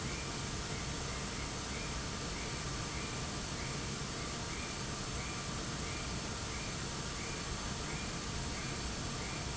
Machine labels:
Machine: fan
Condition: abnormal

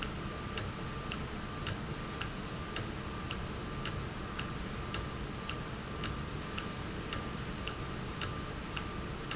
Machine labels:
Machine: valve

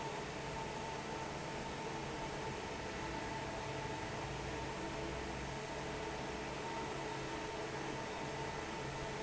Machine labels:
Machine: fan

